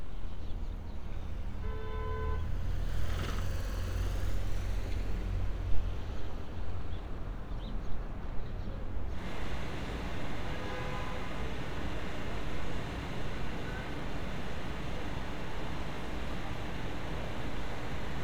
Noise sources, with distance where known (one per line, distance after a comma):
car horn, far